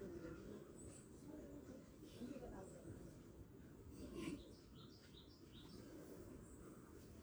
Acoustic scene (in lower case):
park